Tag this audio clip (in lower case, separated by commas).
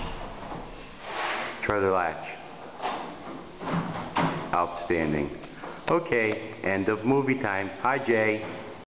door, speech